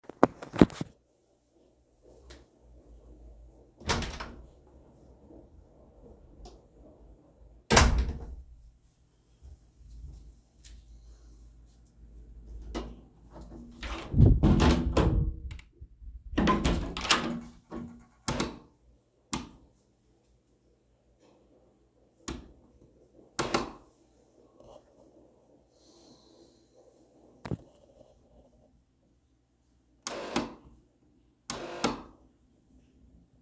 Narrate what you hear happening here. Opened door, turned on light switch, closed door, opened second door, turned on light switch, turned off other light switch.